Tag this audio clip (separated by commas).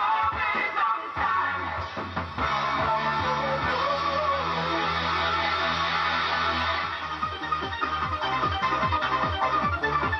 Radio, Music